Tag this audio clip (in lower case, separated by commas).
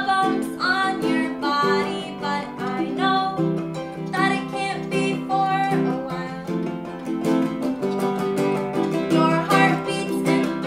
music, musical instrument, guitar, plucked string instrument, bowed string instrument, ukulele